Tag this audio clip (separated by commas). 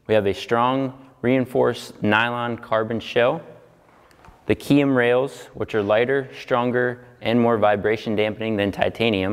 Speech